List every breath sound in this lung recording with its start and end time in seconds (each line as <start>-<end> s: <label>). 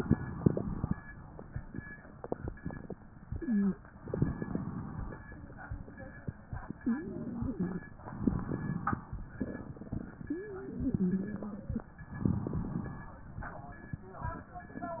0.00-0.97 s: inhalation
3.32-3.78 s: wheeze
4.02-5.18 s: inhalation
6.81-7.83 s: wheeze
8.05-9.07 s: inhalation
10.17-11.90 s: wheeze
12.11-13.19 s: inhalation